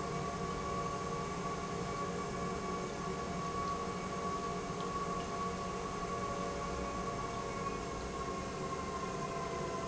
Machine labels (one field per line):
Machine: pump